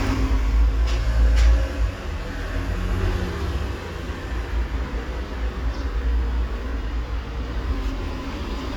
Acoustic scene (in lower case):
street